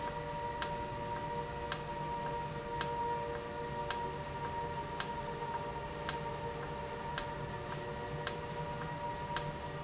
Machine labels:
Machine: valve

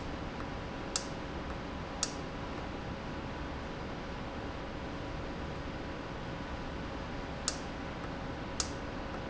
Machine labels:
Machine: valve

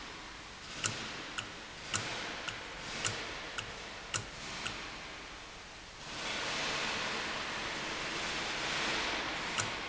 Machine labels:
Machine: valve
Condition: normal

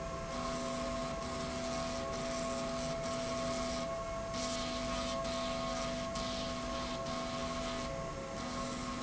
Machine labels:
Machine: slide rail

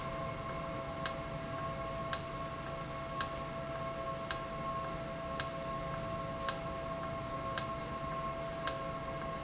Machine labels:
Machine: valve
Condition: normal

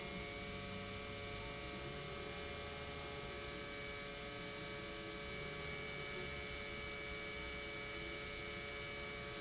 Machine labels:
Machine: pump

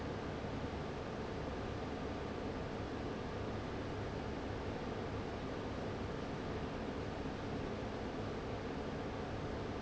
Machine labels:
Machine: fan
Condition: abnormal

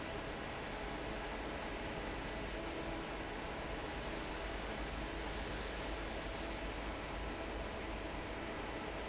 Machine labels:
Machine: fan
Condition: normal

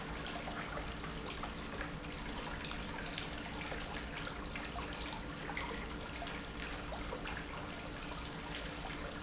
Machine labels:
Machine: pump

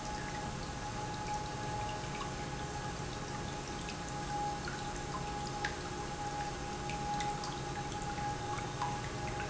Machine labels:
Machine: pump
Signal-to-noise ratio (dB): -6 dB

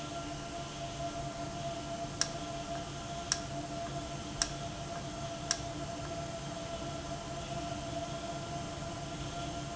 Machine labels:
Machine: valve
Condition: normal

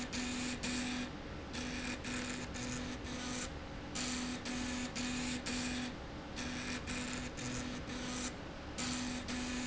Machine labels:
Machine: slide rail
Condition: abnormal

